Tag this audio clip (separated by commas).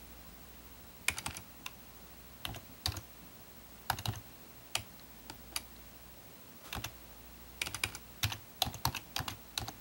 Typing, Computer keyboard